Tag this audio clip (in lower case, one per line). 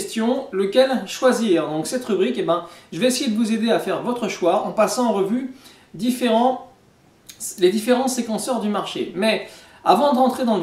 speech